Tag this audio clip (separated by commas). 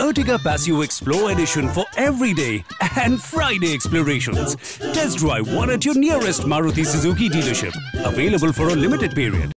Speech, Music